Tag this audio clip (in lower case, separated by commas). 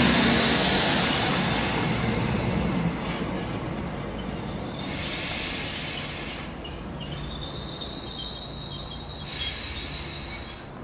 train wagon, rail transport, train, vehicle, hiss